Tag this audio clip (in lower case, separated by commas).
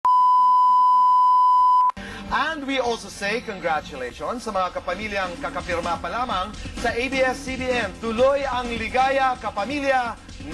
speech, inside a large room or hall, music